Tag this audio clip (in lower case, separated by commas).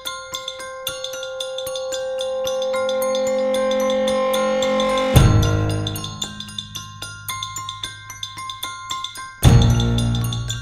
music